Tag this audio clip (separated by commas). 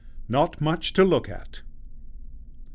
Human voice, Male speech, Speech